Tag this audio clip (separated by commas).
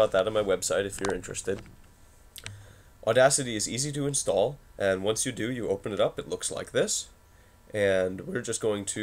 Speech